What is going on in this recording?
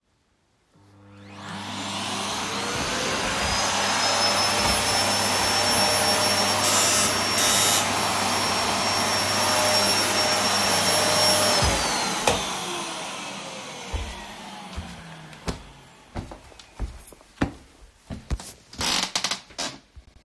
I am vacuuming the living room floor when the doorbell suddenly rings. I turn off the vacuum cleaner and walk toward the door while footsteps are heard.